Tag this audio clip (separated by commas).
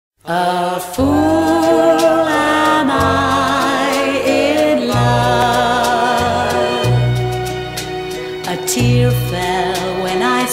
Music